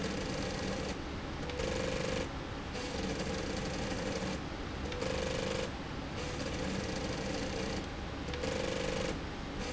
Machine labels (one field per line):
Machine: slide rail